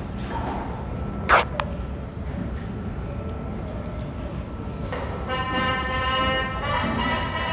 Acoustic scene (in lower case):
subway station